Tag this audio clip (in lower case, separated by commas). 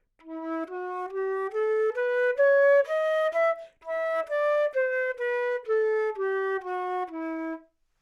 musical instrument, wind instrument, music